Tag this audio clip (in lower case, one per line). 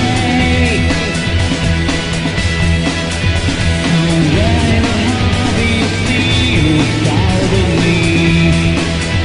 music